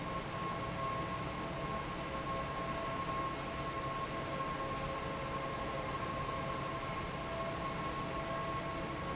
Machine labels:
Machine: fan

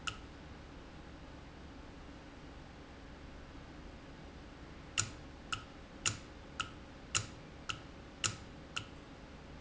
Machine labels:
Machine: valve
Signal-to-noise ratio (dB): 6 dB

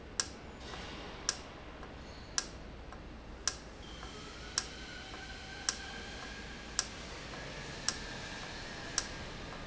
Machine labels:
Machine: valve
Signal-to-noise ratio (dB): 0 dB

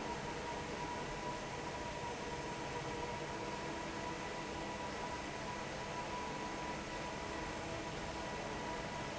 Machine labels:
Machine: fan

